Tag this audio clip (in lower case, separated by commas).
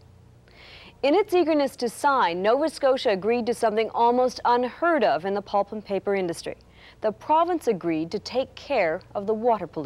speech